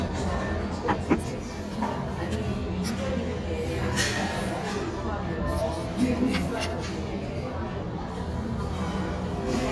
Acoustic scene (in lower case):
cafe